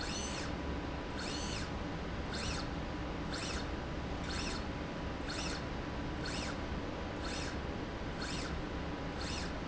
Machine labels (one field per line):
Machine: slide rail